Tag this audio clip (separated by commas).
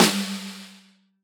Music, Percussion, Drum, Musical instrument, Snare drum